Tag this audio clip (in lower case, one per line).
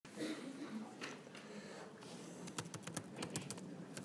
computer keyboard
typing
domestic sounds